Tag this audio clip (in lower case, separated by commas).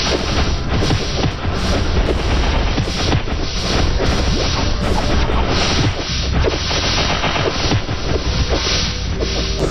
music